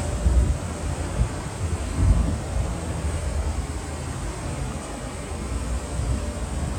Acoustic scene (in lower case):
street